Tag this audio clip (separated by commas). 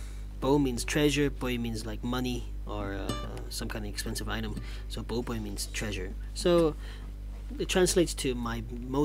Plucked string instrument, Speech, Acoustic guitar, Strum, Music, Guitar, Musical instrument